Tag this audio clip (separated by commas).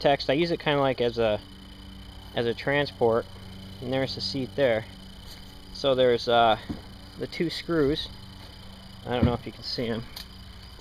Speech